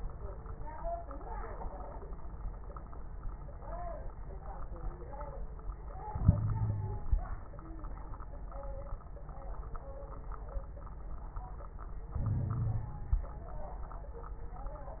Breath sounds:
Inhalation: 6.11-7.39 s, 12.15-13.27 s
Wheeze: 6.22-7.00 s
Crackles: 12.15-13.27 s

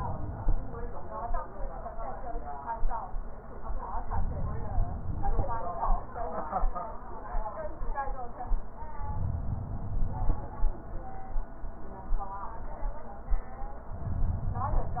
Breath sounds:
Inhalation: 4.09-5.59 s, 9.03-10.53 s

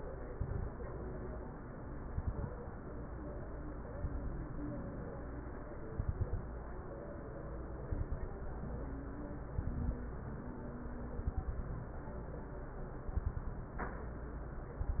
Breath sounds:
Inhalation: 0.30-0.78 s, 2.07-2.54 s, 3.95-4.42 s, 5.95-6.42 s, 7.87-8.34 s, 9.54-10.01 s, 11.17-11.78 s, 13.13-13.74 s
Crackles: 2.07-2.54 s, 3.95-4.42 s, 5.95-6.42 s, 7.87-8.34 s, 9.54-10.01 s, 11.17-11.78 s, 13.13-13.74 s

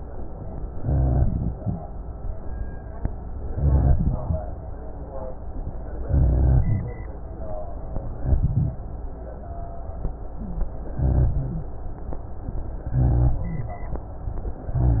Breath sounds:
Inhalation: 0.76-1.77 s, 3.49-4.50 s, 6.05-6.98 s, 8.22-8.79 s, 10.97-11.67 s, 12.92-13.62 s
Rhonchi: 0.76-1.77 s, 3.49-4.50 s, 6.05-6.98 s, 8.22-8.79 s, 10.97-11.67 s, 12.92-13.62 s

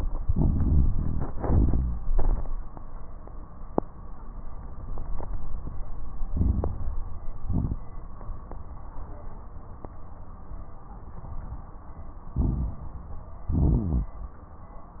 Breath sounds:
Inhalation: 0.26-1.27 s, 6.31-7.28 s, 12.35-13.11 s
Exhalation: 1.37-2.11 s, 7.35-7.85 s, 13.45-14.21 s
Crackles: 0.26-1.27 s, 1.37-2.11 s, 6.31-7.28 s, 7.35-7.85 s, 12.35-13.11 s, 13.45-14.21 s

